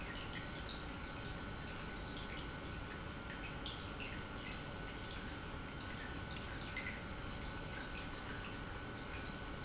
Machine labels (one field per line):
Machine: pump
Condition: normal